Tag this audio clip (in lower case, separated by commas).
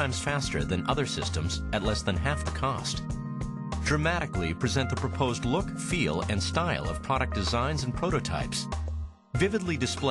music, speech